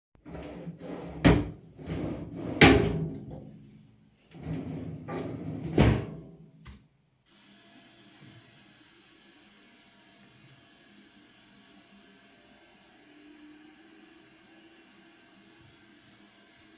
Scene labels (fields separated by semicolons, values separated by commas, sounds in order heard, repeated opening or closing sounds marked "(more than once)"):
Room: living room; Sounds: wardrobe or drawer (more than once), vacuum cleaner